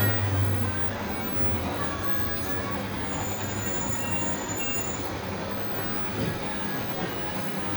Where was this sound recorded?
on a bus